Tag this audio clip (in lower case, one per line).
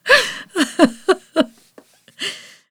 giggle
laughter
human voice